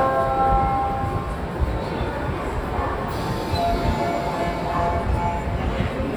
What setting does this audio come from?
subway station